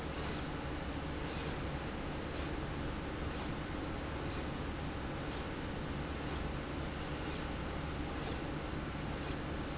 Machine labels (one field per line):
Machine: slide rail